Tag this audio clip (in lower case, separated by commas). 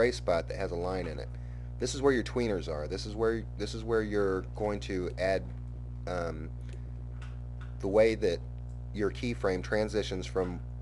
speech